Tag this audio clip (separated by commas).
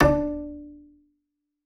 Bowed string instrument, Music, Musical instrument